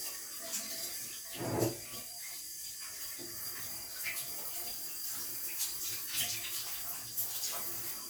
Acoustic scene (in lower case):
restroom